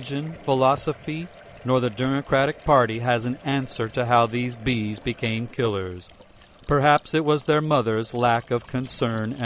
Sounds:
Speech, Pour

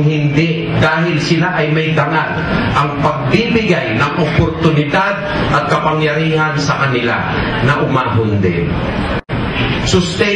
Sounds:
man speaking, Narration, Speech

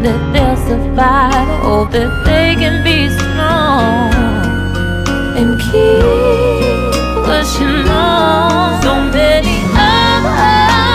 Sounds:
Music

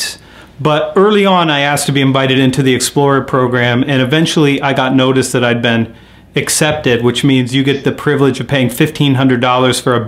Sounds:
Speech

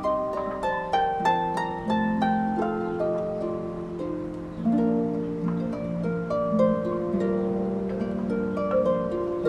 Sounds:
Music

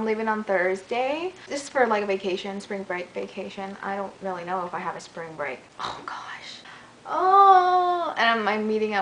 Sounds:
inside a small room, Speech

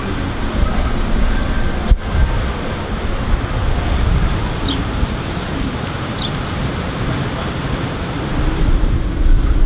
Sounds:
tornado roaring

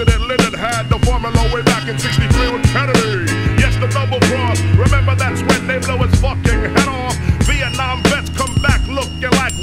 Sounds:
Rock and roll, Soul music, Punk rock, Music

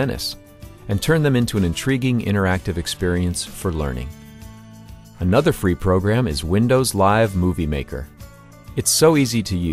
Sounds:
Speech, Music

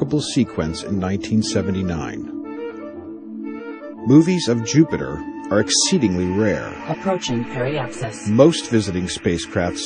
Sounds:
Speech, Music, Clarinet

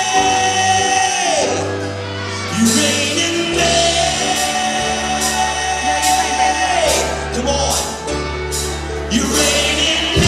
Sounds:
Male singing, Speech, Music

